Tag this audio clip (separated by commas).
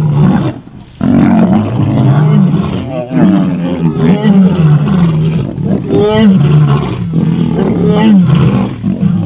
lions roaring